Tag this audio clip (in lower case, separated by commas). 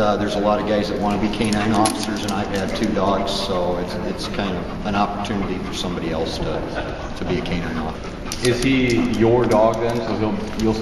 speech